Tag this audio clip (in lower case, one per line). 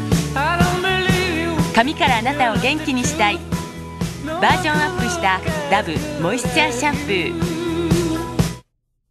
music
speech